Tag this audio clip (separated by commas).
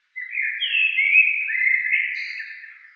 Wild animals, Bird, Animal